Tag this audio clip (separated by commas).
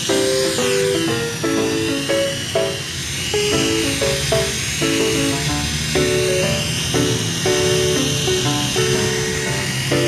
Music